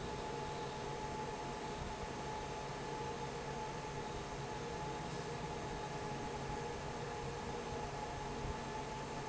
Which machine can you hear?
fan